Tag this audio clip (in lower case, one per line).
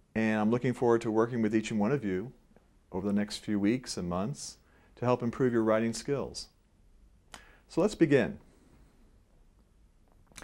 speech